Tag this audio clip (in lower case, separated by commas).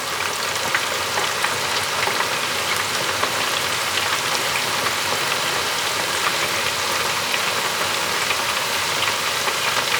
home sounds, frying (food)